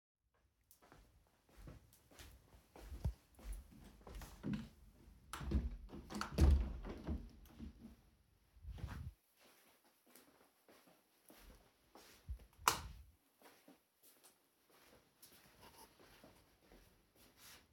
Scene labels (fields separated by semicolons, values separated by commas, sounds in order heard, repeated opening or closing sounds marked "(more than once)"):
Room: bedroom; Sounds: footsteps, window, light switch